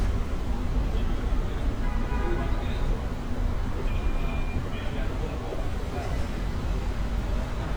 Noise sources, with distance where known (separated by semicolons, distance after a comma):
car horn, near; person or small group talking